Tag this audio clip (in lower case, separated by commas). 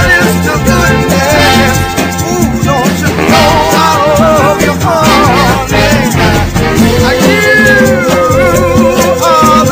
salsa music, music